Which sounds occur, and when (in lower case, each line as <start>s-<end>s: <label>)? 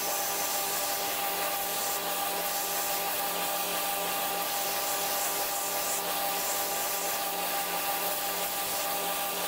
0.0s-9.4s: mechanisms